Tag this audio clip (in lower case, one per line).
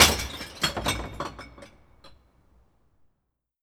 shatter
glass
crushing